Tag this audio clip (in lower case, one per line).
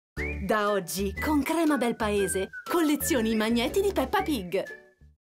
music
speech